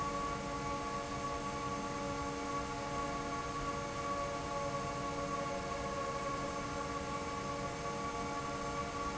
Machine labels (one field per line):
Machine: fan